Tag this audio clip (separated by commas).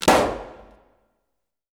Explosion